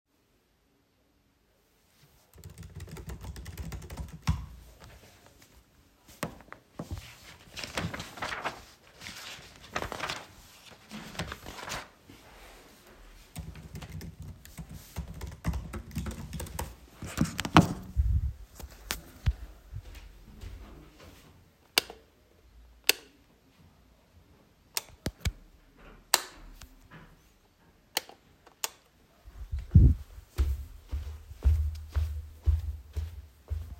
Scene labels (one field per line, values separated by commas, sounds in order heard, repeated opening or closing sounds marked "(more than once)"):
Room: living room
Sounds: keyboard typing, footsteps, light switch